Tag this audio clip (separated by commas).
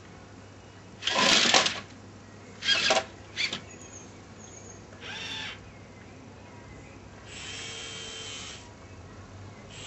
electric razor